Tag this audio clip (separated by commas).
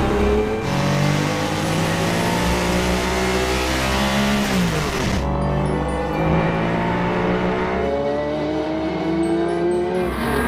Music